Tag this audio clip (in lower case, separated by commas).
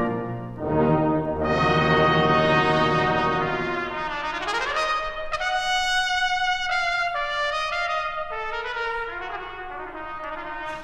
music, trumpet, brass instrument, classical music, orchestra